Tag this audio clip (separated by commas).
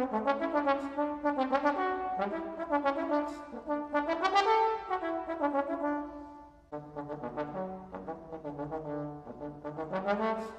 playing trombone, Brass instrument, Trombone